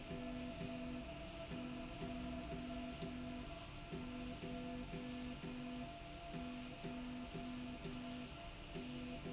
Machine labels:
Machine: slide rail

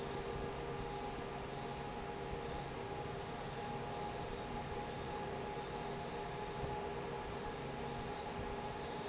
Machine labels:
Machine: fan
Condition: normal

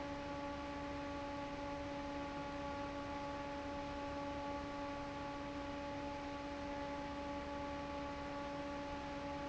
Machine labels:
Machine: fan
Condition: normal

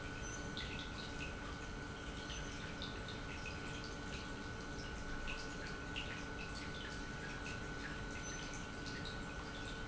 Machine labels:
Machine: pump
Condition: normal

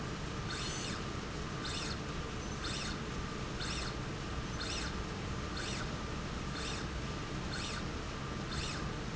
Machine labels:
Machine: slide rail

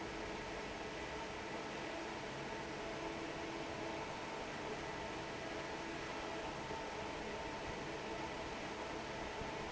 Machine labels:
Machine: fan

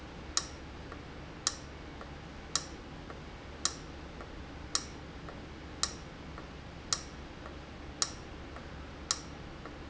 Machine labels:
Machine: valve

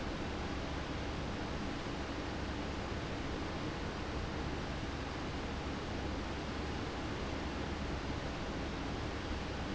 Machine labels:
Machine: fan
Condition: abnormal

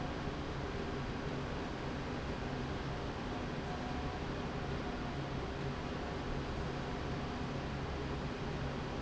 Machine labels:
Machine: slide rail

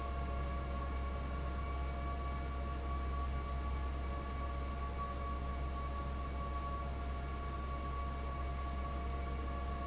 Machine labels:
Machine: fan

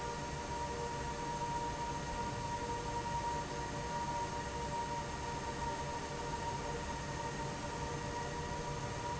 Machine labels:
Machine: fan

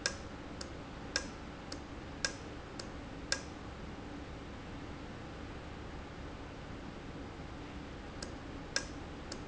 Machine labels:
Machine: valve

